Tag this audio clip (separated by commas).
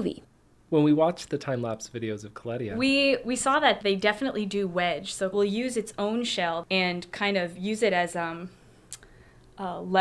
Speech